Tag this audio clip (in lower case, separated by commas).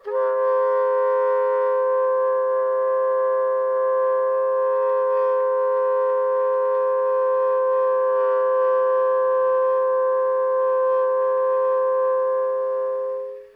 musical instrument, woodwind instrument, music